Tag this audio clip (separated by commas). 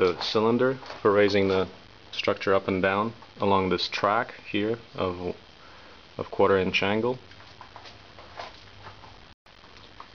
Speech